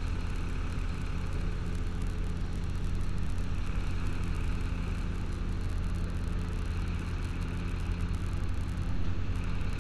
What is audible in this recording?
small-sounding engine